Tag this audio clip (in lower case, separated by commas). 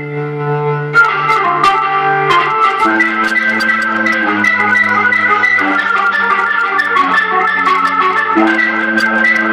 organ, electronic organ